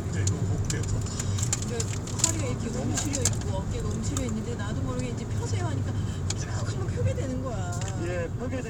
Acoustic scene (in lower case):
car